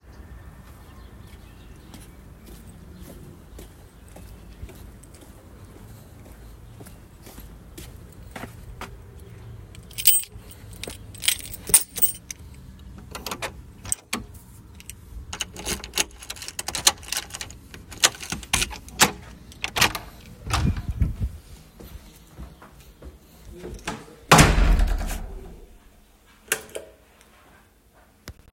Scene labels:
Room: hallway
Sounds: footsteps, keys, door, light switch

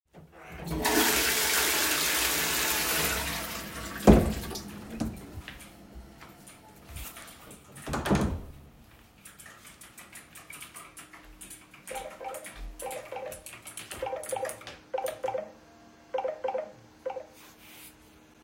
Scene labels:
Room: lavatory, hallway, office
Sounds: toilet flushing, door (more than once), keyboard typing, phone ringing

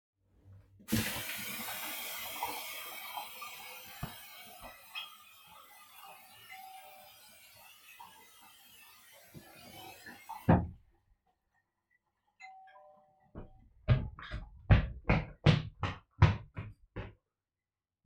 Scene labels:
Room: bathroom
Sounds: running water, bell ringing, footsteps

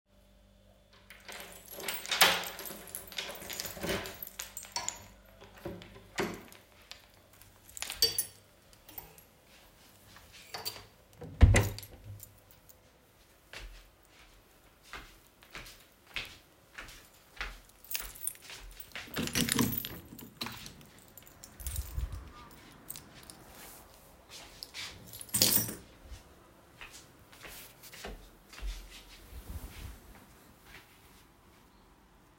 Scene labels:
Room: bedroom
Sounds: keys, door (more than once), footsteps, window

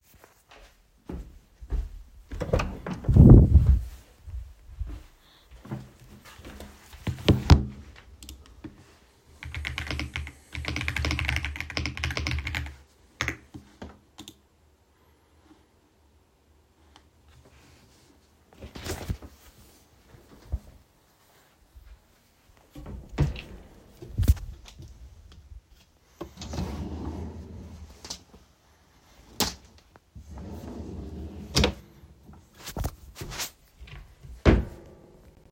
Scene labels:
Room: bedroom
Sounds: footsteps, door, keyboard typing, wardrobe or drawer (more than once)

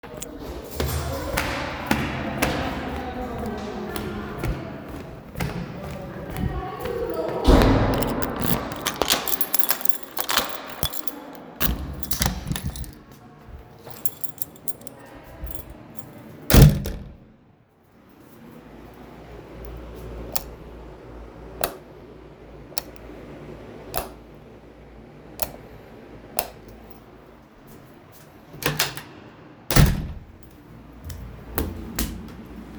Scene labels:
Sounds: footsteps, keys, door (more than once), light switch

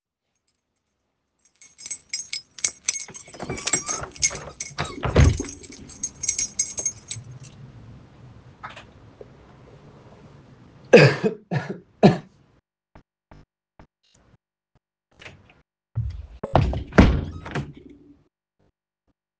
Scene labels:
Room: bedroom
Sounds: keys

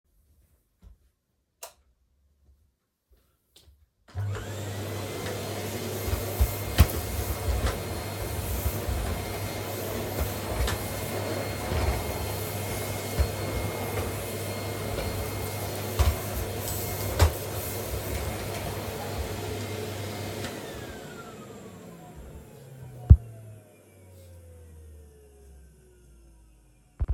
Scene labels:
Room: living room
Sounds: light switch, vacuum cleaner

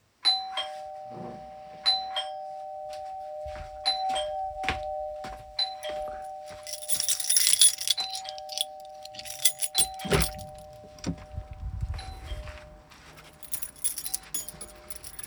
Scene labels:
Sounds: bell ringing, footsteps, keys, door

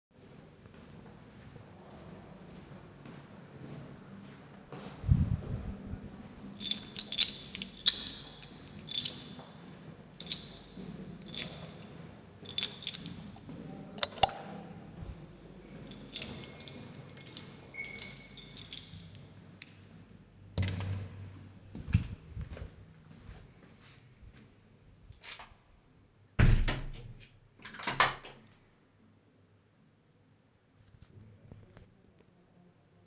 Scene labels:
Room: hallway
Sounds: footsteps, keys, light switch, door

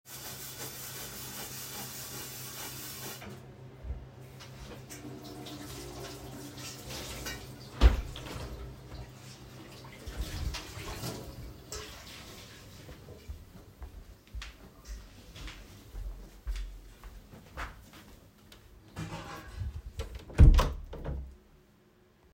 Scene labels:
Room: kitchen, bedroom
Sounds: running water, footsteps, door

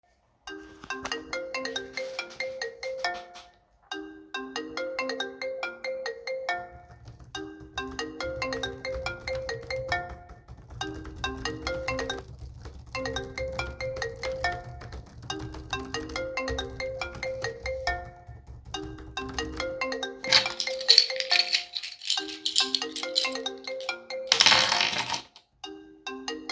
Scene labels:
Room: bedroom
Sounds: phone ringing, keyboard typing, keys

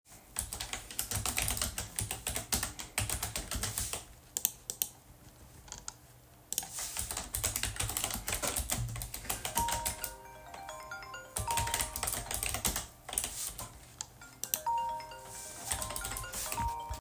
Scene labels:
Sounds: keyboard typing, phone ringing

